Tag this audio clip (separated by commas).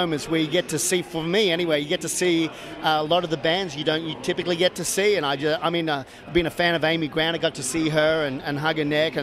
Speech